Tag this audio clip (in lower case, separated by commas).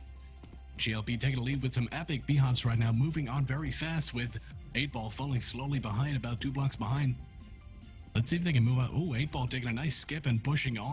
speech